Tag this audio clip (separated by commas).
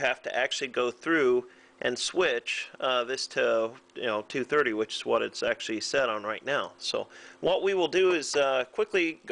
Speech